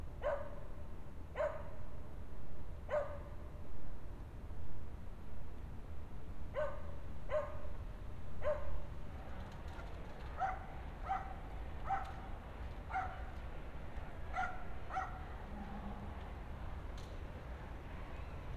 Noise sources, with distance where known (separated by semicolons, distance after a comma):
dog barking or whining